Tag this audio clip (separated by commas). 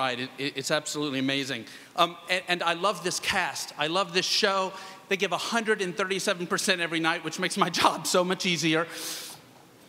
Speech, man speaking, Narration